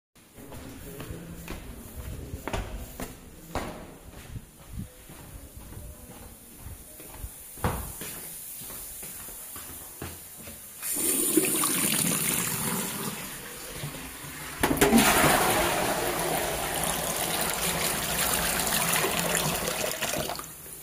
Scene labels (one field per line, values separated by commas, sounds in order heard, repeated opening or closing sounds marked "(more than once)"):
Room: bathroom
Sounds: footsteps, running water, toilet flushing